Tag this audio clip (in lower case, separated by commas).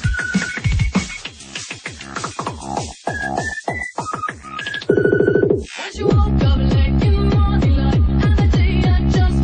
music, electronic music